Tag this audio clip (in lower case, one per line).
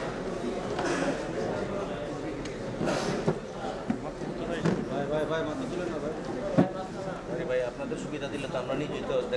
woman speaking
speech
male speech